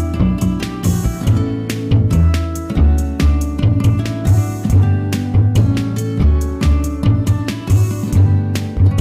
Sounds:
Theme music, Soundtrack music, Music

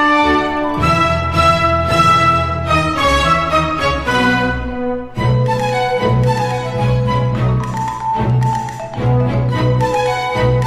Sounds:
Music

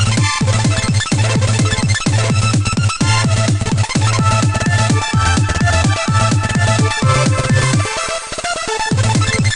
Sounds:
Soundtrack music, Music

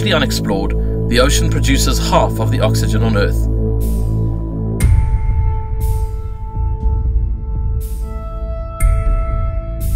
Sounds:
Speech, Music

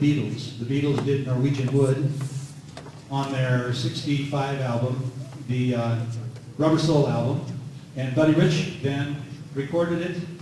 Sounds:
Speech

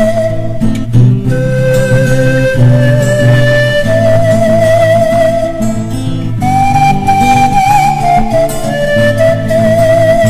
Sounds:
Music, Flute

